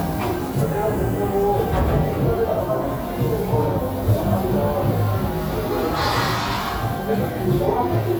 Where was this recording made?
in a cafe